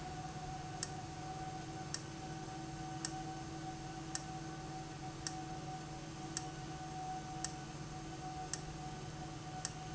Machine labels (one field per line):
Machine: valve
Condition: abnormal